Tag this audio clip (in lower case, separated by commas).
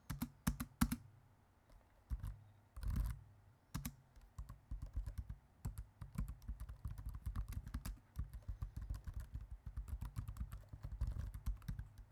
computer keyboard, home sounds, typing